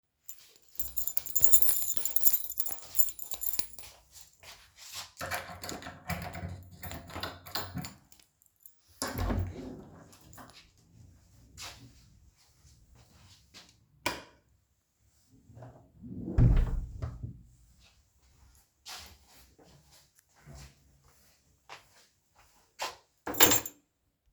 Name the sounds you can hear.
footsteps, keys, door, light switch